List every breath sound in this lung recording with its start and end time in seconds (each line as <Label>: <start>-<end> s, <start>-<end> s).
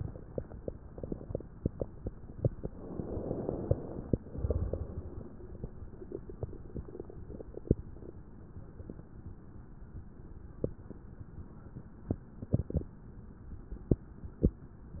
Inhalation: 2.67-4.16 s
Exhalation: 4.26-5.29 s